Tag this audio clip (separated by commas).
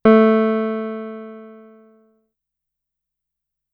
Music, Musical instrument, Piano, Keyboard (musical)